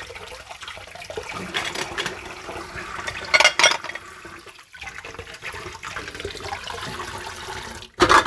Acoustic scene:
kitchen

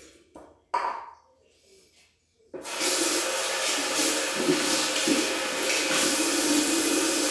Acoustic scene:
restroom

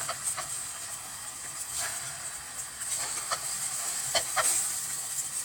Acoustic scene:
kitchen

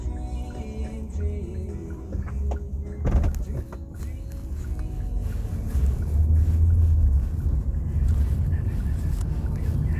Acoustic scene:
car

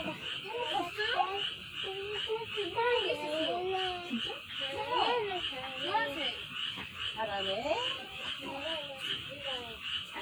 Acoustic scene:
park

